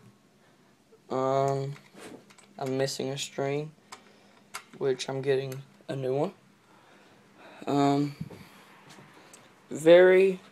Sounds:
Speech

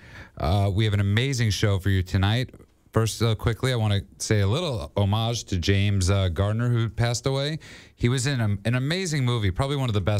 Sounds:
Speech

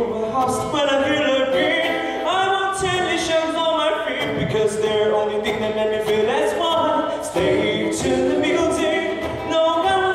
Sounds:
Music, Jazz, Pop music

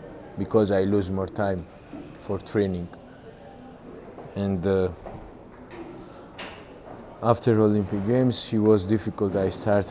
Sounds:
Speech

